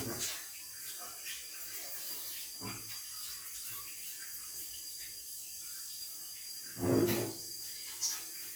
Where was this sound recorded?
in a restroom